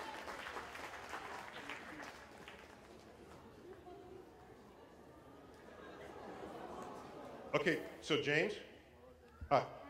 Clapping and applause and a man speaks through a microphone